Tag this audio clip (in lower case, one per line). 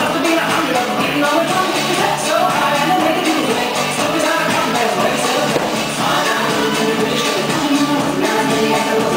dance music
music